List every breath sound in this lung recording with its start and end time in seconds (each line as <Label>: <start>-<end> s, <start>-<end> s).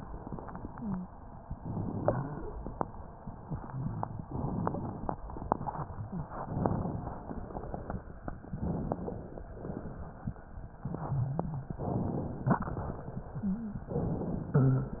Inhalation: 1.60-2.45 s, 4.31-5.16 s, 6.38-7.23 s, 8.54-9.39 s, 11.77-12.62 s, 13.89-14.57 s
Exhalation: 3.63-4.27 s, 9.47-10.11 s
Wheeze: 0.68-1.10 s, 1.60-2.45 s, 3.63-4.27 s, 10.76-11.73 s, 13.44-13.83 s